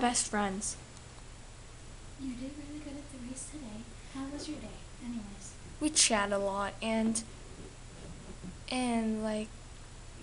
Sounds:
speech

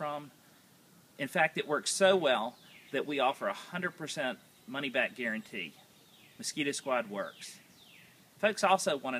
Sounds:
speech

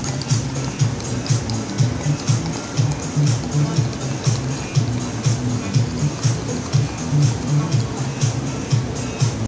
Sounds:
musical instrument, speech, music

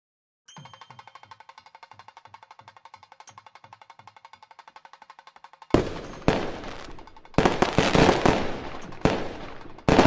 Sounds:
firecracker, music

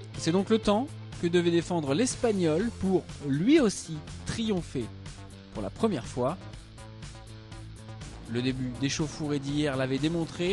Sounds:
speech, music

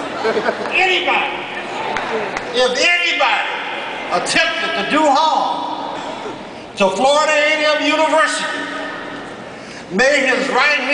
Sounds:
speech

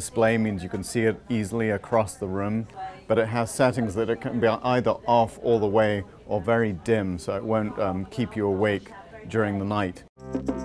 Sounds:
speech

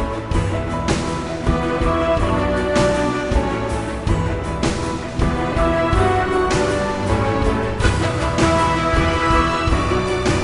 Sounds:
music

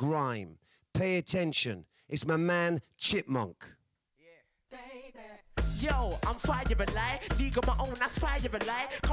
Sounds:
speech, music

